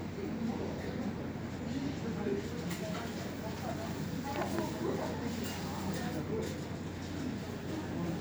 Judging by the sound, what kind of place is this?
subway station